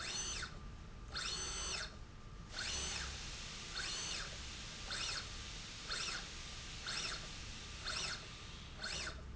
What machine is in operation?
slide rail